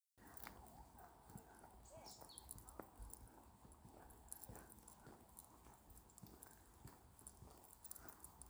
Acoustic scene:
park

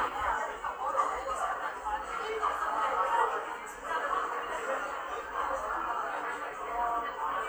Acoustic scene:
cafe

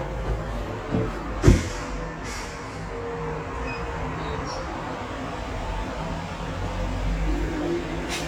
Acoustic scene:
elevator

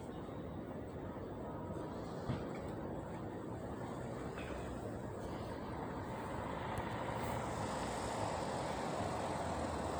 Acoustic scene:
residential area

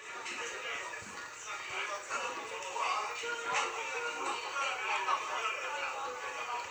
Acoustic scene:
restaurant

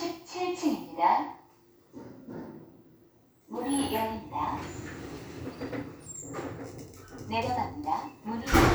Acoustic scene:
elevator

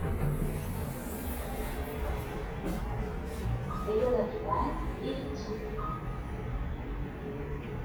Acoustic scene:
elevator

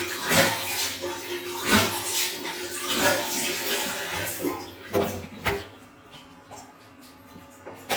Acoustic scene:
restroom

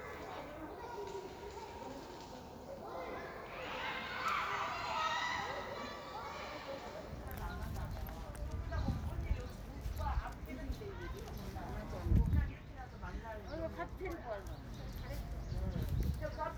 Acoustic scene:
park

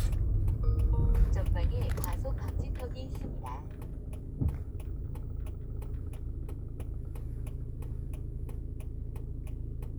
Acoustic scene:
car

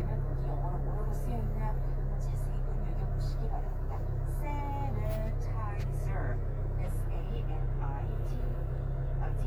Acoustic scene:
car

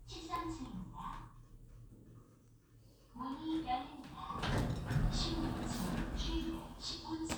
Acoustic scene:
elevator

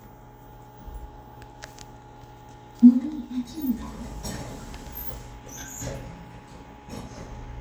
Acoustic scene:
elevator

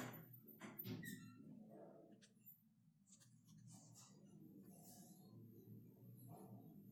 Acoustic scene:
elevator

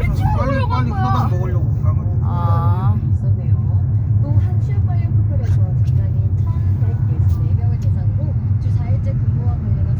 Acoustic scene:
car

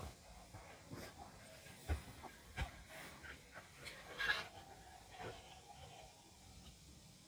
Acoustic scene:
park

